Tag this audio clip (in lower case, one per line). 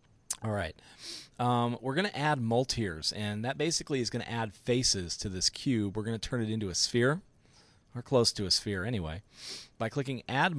speech